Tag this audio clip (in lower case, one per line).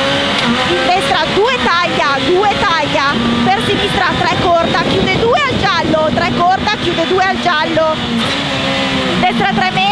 speech
car
vehicle
motor vehicle (road)